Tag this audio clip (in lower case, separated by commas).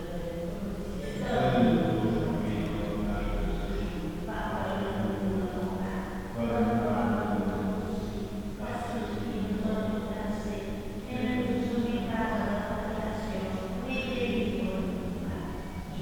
singing, human voice